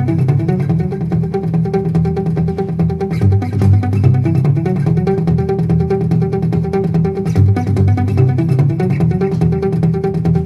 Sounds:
music, plucked string instrument, guitar, acoustic guitar, musical instrument

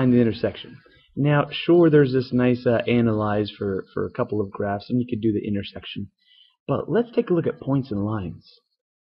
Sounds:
speech, monologue

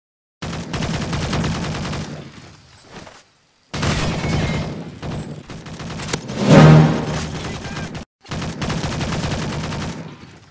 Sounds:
fusillade, music, speech

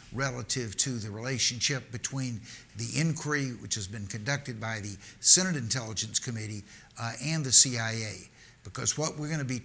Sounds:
man speaking, monologue, speech

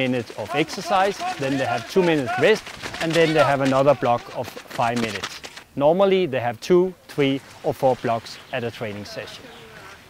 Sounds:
speech, run, male speech

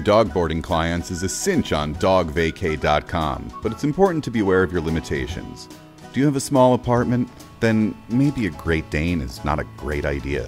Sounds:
speech, music

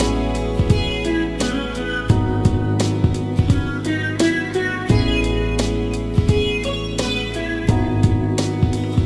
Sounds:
music

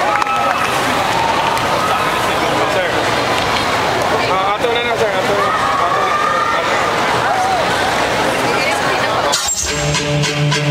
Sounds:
music, speech

